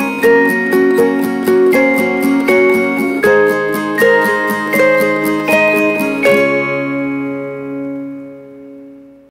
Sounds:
Music

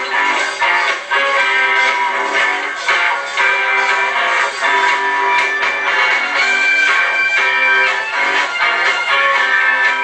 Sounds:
Music

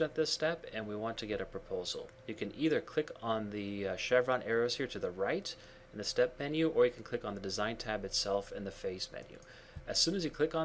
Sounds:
Speech

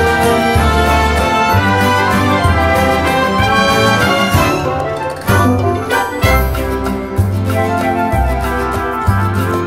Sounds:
Music, Jazz

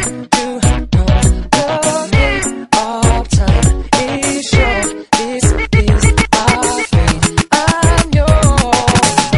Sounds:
Funk, Music

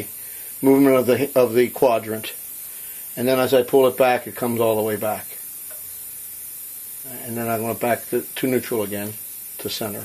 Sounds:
Speech

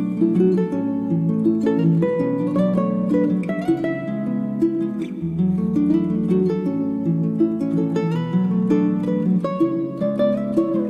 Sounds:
Music

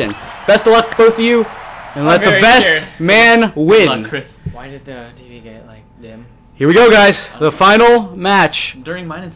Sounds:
Speech

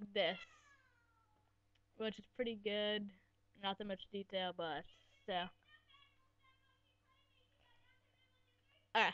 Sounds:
Speech

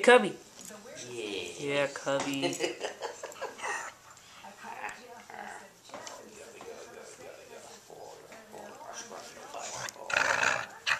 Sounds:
Dog, Speech, Animal, Domestic animals

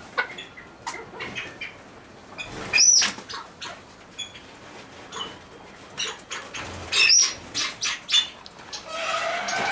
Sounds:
pheasant crowing

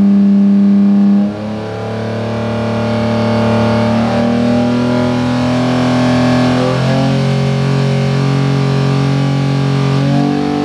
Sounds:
Engine, revving, Medium engine (mid frequency), Idling

